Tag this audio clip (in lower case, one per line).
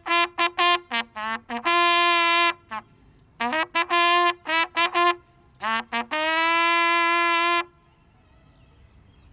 playing cornet